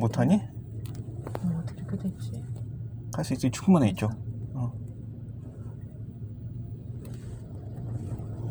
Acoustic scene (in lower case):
car